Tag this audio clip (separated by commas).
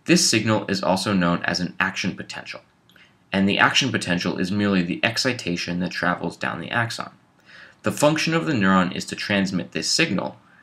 Speech